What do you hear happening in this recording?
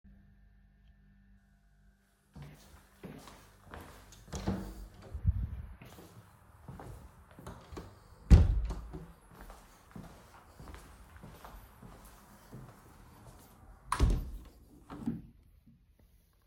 I arrive in my dorm room, but I feel cold, so I close the window.